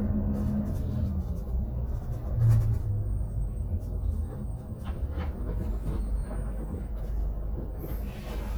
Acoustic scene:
bus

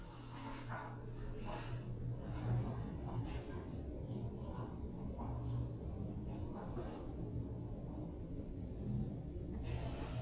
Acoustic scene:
elevator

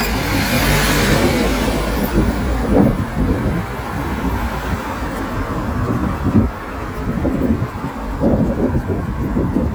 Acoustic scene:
street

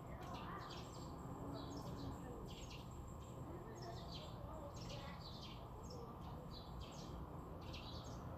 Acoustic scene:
residential area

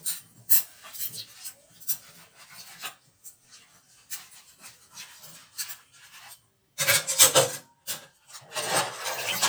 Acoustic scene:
kitchen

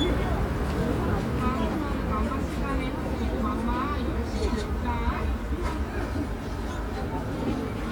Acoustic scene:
residential area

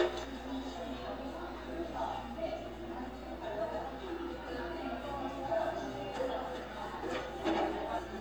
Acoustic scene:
cafe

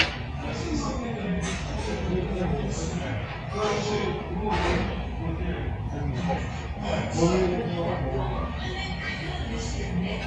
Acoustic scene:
restaurant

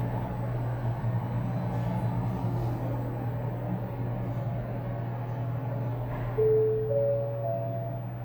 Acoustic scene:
elevator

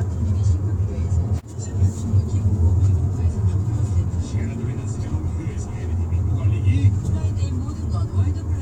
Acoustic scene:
car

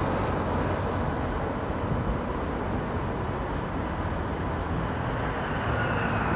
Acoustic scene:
street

